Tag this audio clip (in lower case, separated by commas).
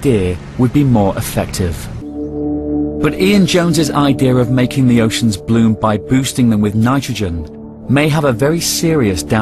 music, speech, ocean